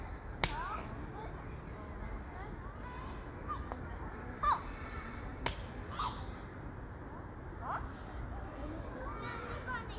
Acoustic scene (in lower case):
park